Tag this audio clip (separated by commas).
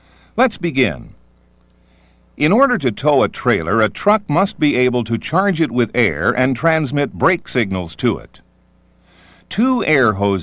Speech